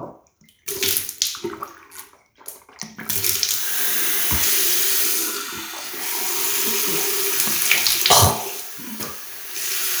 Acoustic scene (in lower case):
restroom